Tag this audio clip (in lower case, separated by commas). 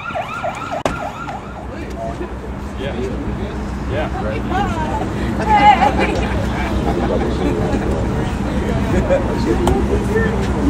speech